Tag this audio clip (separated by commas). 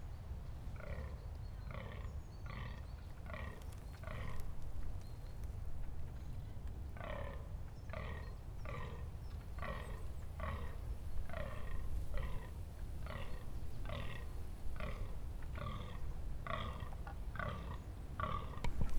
Wind